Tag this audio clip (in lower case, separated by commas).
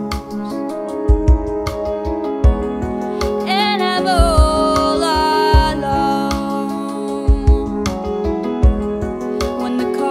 music, independent music